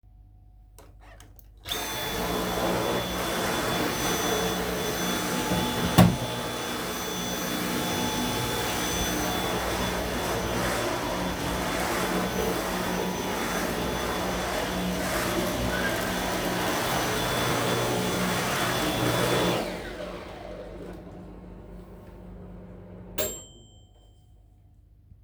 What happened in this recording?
I started cleaning with the vacuum-cleaner, closed the microwave and started it while cleaning. Then I stopped cleaning and then the microwave finished.